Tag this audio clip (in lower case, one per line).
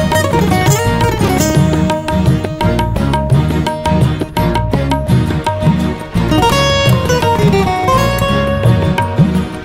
playing sitar